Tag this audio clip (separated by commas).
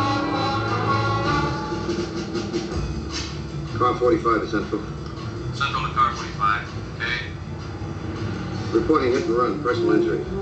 Motor vehicle (road), Vehicle, Music, Speech